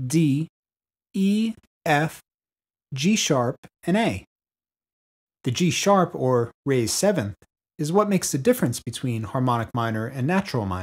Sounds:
Speech

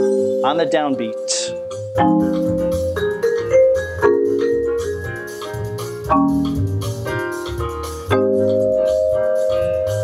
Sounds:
playing vibraphone

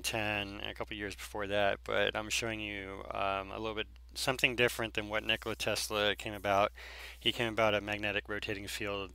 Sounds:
Speech

